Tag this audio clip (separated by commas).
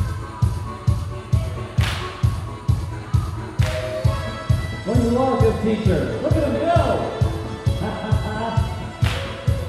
Crowd, Speech, Music